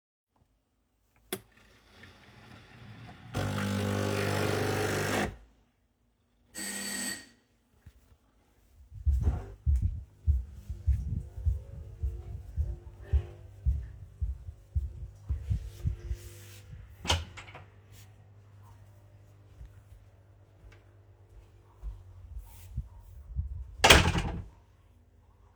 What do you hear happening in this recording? I stood in my kitchen and started my coffee machine. While my coffee machine was still running the door bell rang. I walked to my door opened it and than closed it afterwards.